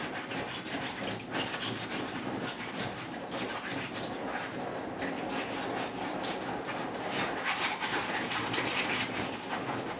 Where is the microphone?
in a kitchen